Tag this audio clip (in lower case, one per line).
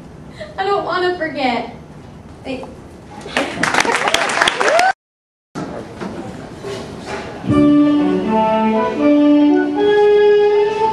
speech
music
narration